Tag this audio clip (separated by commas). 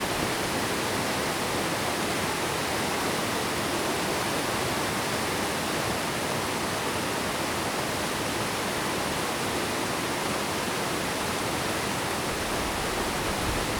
Water